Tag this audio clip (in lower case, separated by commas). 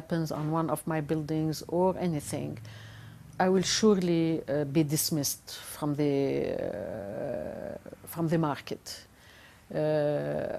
speech